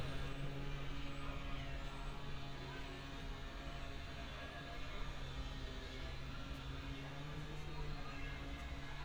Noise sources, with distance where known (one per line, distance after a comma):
unidentified powered saw, far